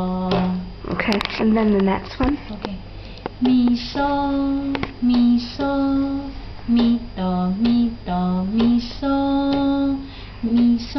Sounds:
Speech, Lullaby

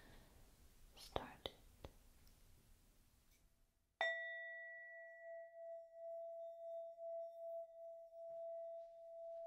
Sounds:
Whispering, Speech

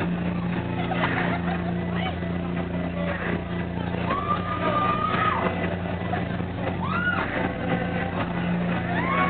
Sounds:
Speech, Music

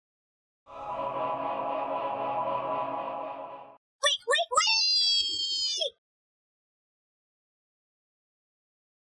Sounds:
Music, Speech

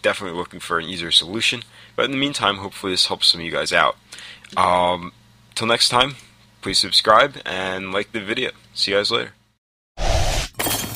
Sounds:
Speech

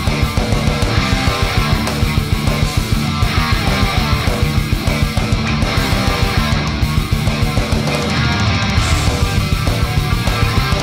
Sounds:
Electric guitar, Music, Plucked string instrument, Musical instrument

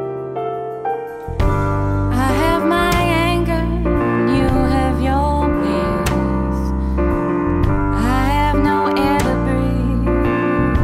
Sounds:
Music, Soul music

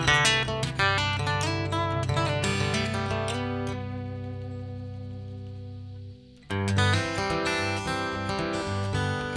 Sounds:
Strum, Plucked string instrument, Musical instrument, Music, Guitar, Acoustic guitar

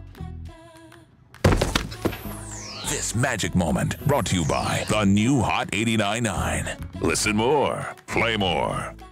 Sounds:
thud, Speech, Music

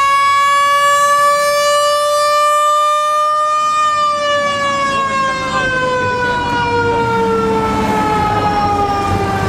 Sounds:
Vehicle, Speech

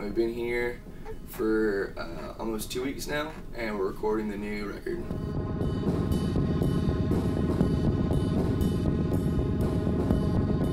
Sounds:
Music, Speech

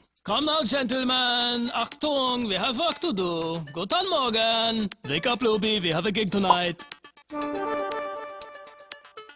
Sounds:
Music, Speech

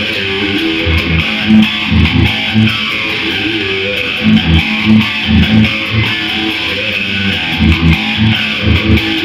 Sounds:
Bass guitar

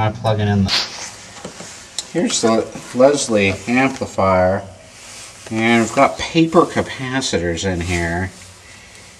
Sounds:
Speech

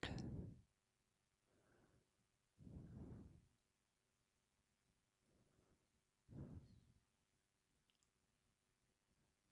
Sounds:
Silence

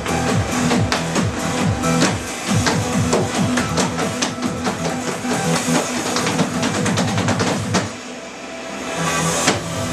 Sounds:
Music

